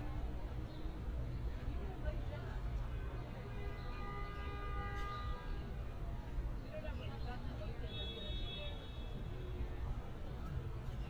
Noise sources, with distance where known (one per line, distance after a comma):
car horn, far
person or small group talking, near